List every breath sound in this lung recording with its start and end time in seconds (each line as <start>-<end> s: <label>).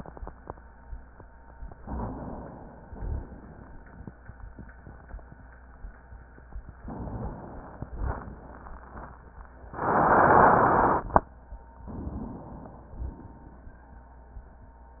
1.73-2.89 s: inhalation
2.89-3.33 s: rhonchi
2.91-3.71 s: exhalation
6.81-7.93 s: inhalation
7.89-8.86 s: exhalation
11.81-12.91 s: inhalation
12.93-14.02 s: exhalation